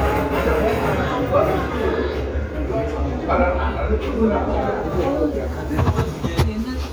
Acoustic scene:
restaurant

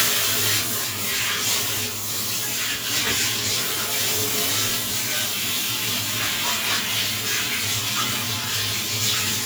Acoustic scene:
restroom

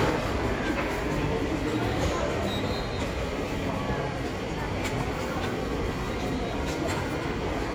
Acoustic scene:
subway station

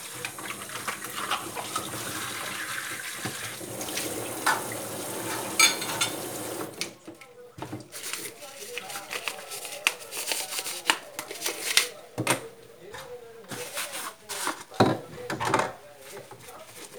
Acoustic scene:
kitchen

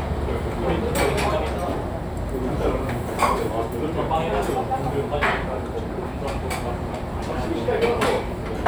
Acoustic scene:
restaurant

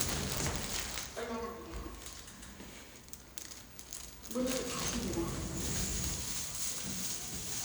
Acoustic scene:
elevator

